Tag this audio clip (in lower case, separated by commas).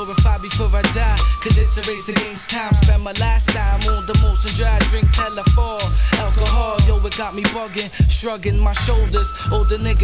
music